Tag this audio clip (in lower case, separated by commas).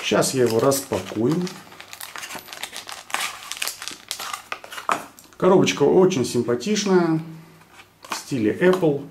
speech